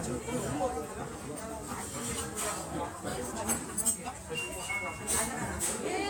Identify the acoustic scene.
restaurant